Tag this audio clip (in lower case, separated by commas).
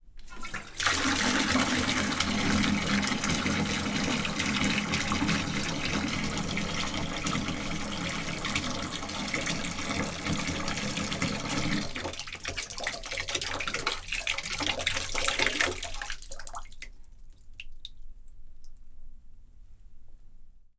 domestic sounds, faucet, bathtub (filling or washing)